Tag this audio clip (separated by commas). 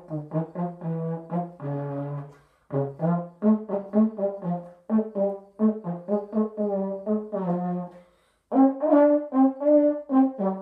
playing trombone